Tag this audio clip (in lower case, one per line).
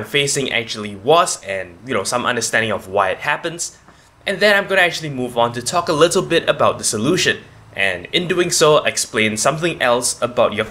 speech